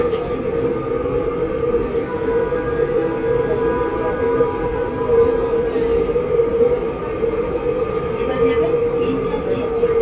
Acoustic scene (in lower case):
subway train